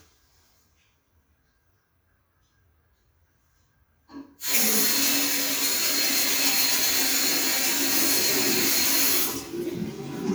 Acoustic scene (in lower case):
restroom